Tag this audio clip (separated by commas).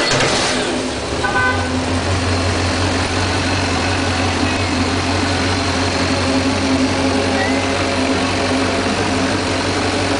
Speech, Vehicle